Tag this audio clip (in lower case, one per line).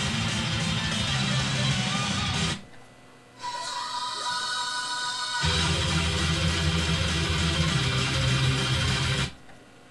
guitar
plucked string instrument
music
strum
electric guitar
musical instrument